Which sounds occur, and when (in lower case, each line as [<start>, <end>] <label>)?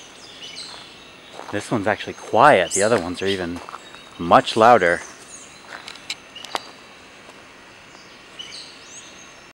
[0.00, 9.53] background noise
[0.19, 0.84] bird vocalization
[0.65, 0.92] footsteps
[1.30, 1.56] footsteps
[1.47, 3.57] male speech
[2.05, 2.34] footsteps
[2.39, 3.70] bird vocalization
[2.83, 3.13] footsteps
[3.51, 3.83] footsteps
[4.14, 4.94] male speech
[4.71, 5.54] bird vocalization
[5.69, 5.89] footsteps
[6.03, 6.19] generic impact sounds
[6.37, 6.62] generic impact sounds
[8.15, 9.01] bird vocalization